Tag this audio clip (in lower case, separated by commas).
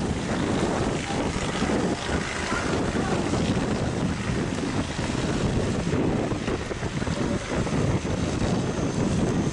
wind, fire, wind noise (microphone)